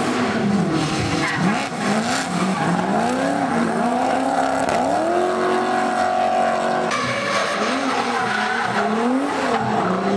Roaring vehicle and screeching types